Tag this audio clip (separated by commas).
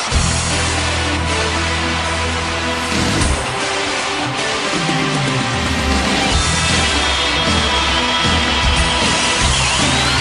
Music